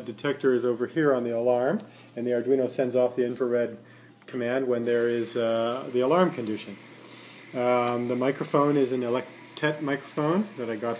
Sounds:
Speech

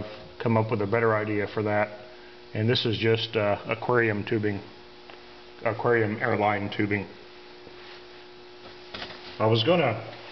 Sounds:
Speech

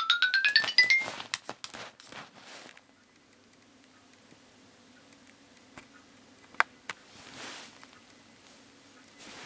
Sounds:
Music, Alarm clock

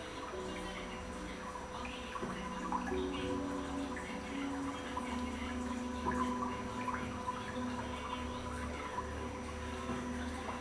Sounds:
Music

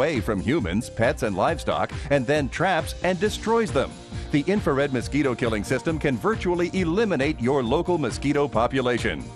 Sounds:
Music, Speech

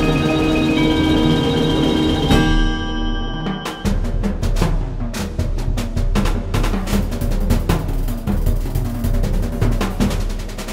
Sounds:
Rimshot, Percussion, Drum, Drum roll, Drum kit

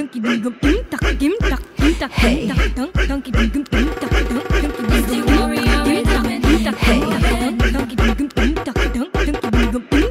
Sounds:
Music, Beatboxing

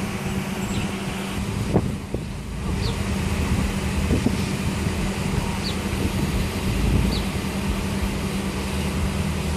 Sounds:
Vehicle

